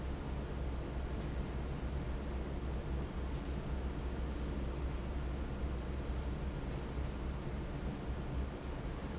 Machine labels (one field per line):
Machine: fan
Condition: normal